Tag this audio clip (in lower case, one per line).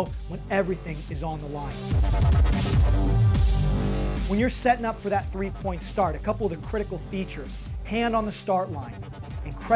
speech
music